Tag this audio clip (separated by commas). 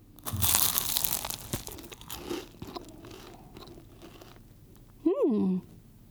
mastication